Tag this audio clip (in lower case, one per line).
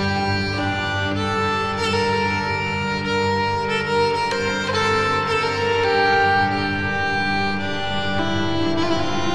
music